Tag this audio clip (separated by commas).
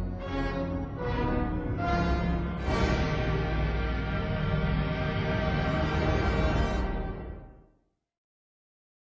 Television